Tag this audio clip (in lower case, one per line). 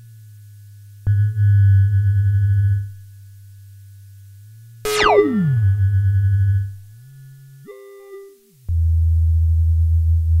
synthesizer